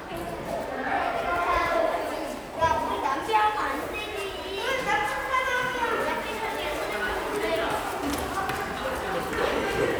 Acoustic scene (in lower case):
crowded indoor space